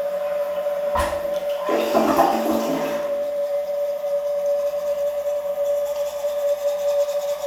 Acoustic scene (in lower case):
restroom